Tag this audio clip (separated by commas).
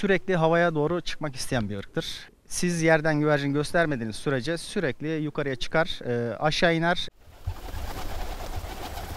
outside, rural or natural, Bird, Speech, dove